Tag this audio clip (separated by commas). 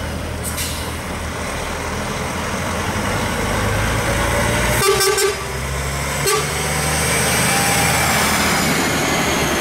Truck, Vehicle, honking